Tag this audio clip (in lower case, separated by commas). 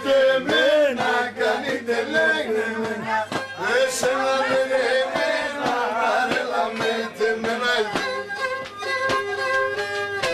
speech, music, traditional music